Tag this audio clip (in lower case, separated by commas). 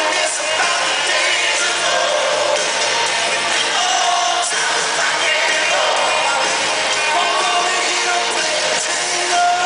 rock and roll, music